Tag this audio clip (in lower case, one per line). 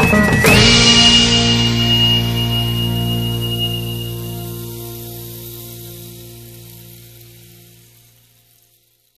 music